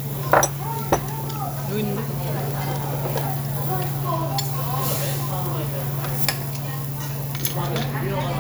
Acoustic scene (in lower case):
restaurant